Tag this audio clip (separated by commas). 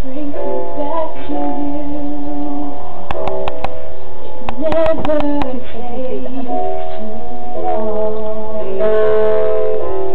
Female singing, Music